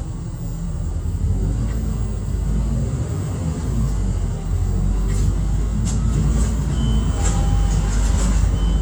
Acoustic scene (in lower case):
bus